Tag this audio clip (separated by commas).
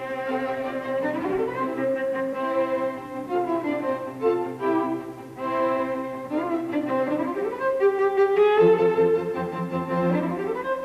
playing cello, Orchestra, Bowed string instrument, Double bass, Music, Classical music, Musical instrument, Cello